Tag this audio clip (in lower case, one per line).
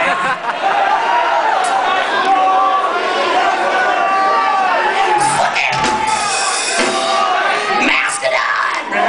speech